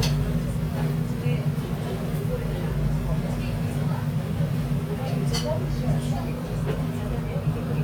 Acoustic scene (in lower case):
restaurant